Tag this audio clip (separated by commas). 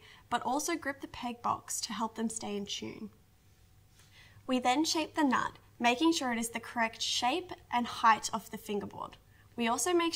Speech